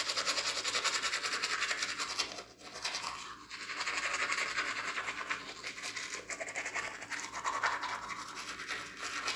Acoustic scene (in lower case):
restroom